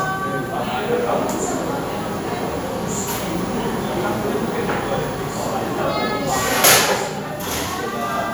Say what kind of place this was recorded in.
cafe